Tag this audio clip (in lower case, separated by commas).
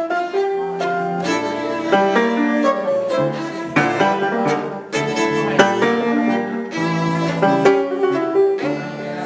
speech, musical instrument, music, violin